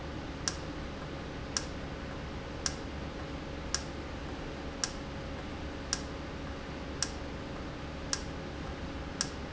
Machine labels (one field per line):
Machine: valve